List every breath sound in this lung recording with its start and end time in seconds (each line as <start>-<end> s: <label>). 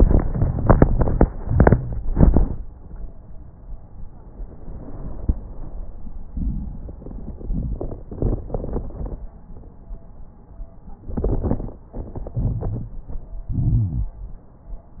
12.39-12.98 s: inhalation
12.39-12.98 s: crackles
13.53-14.17 s: exhalation
13.53-14.17 s: crackles